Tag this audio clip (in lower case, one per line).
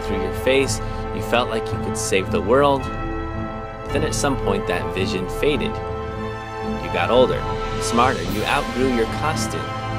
speech
music